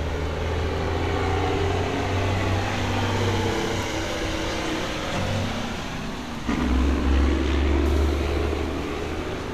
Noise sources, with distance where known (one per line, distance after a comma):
large-sounding engine, near